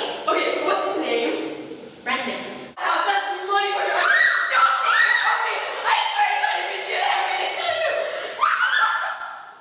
Girls speaking in an echoing space followed by girls screaming